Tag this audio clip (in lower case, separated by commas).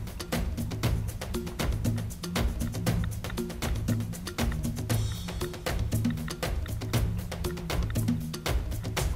music